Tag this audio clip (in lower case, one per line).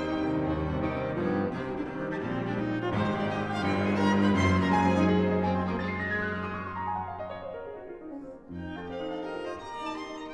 music
cello
playing cello
violin
musical instrument